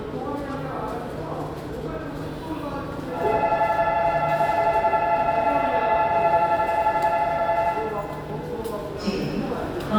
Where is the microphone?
in a subway station